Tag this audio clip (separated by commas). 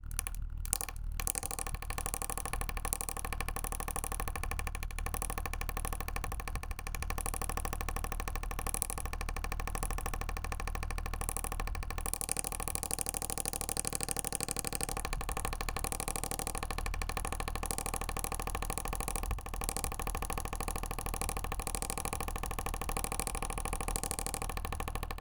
Mechanisms, Mechanical fan